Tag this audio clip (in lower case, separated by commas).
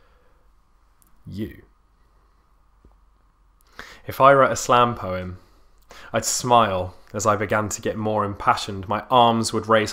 speech